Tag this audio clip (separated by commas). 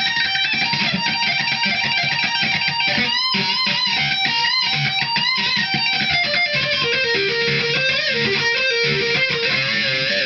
Plucked string instrument, Musical instrument, Music, Guitar, Bass guitar, Strum